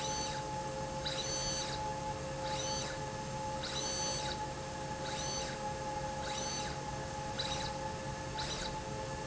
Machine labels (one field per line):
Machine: slide rail